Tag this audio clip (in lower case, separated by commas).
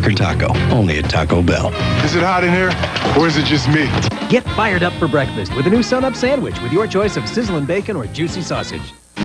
speech, music